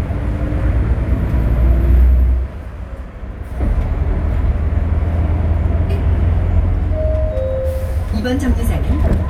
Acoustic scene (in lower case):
bus